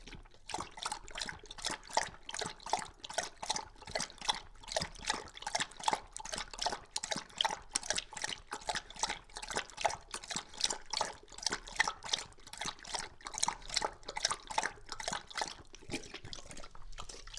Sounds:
dog, pets, animal

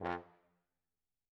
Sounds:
musical instrument, music, brass instrument

